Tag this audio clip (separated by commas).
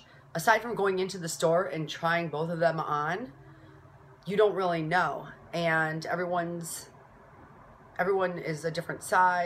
Speech